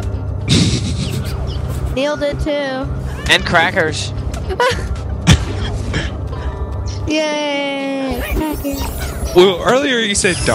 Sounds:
Speech

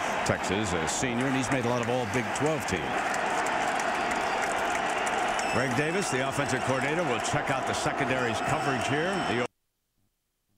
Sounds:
Speech

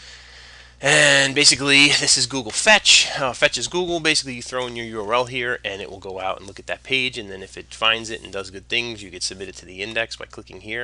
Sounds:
Speech

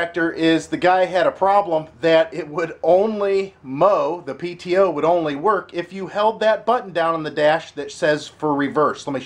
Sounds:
Speech

